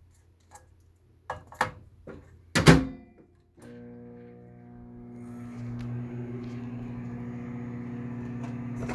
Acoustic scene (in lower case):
kitchen